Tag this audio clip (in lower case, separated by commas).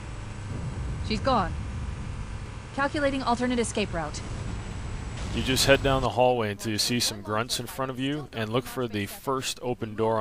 speech